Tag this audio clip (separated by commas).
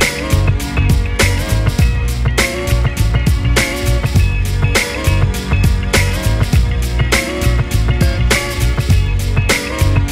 Music